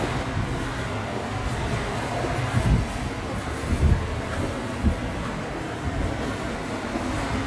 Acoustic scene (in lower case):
subway station